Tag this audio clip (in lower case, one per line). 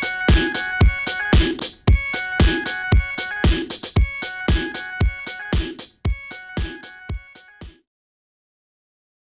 music